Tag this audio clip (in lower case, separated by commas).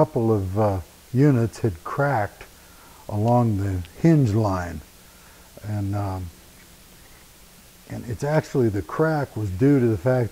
speech